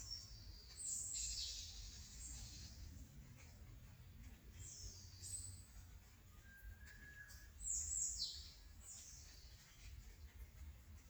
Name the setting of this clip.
park